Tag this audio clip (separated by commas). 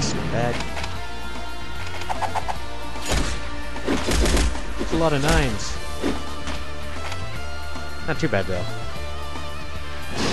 Music, Speech